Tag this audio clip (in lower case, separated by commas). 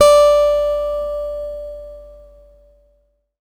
music, acoustic guitar, musical instrument, guitar, plucked string instrument